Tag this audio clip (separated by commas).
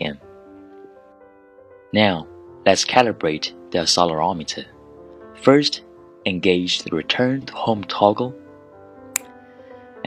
Music, Speech